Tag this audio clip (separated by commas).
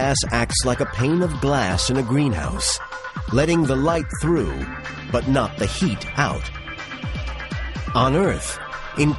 raining